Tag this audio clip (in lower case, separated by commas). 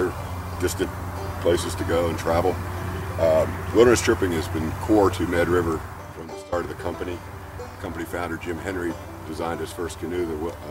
speech, music